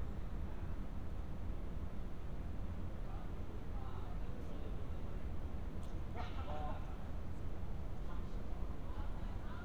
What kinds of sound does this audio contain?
person or small group talking